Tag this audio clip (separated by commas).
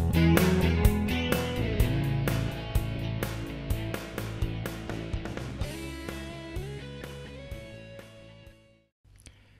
Music